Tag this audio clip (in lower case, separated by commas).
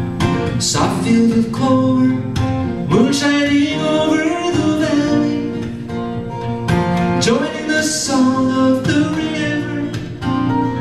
music